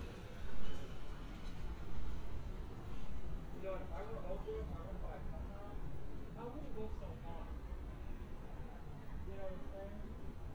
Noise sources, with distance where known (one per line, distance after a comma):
person or small group talking, near